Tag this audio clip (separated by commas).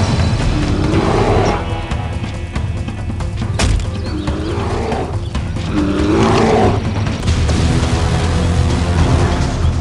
dinosaurs bellowing